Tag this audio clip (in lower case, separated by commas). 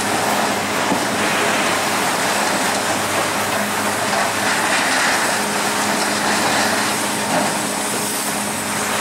vehicle